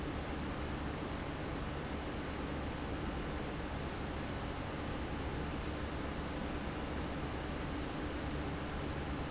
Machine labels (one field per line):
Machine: fan